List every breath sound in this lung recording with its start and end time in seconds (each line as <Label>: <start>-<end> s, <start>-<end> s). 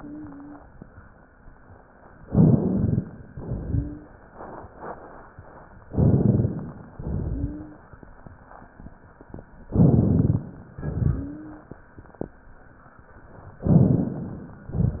Inhalation: 2.28-3.27 s, 5.92-6.93 s, 9.73-10.78 s, 13.68-14.57 s
Exhalation: 3.27-4.12 s, 6.98-7.84 s, 10.82-11.74 s
Wheeze: 3.59-4.14 s, 7.29-7.84 s, 11.14-11.74 s
Rhonchi: 2.24-2.98 s, 5.92-6.66 s, 9.73-10.46 s, 13.68-14.57 s